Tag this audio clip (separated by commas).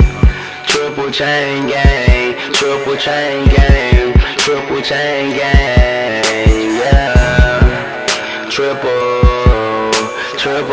Music, Funk